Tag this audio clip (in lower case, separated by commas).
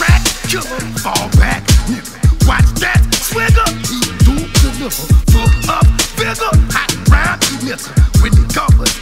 music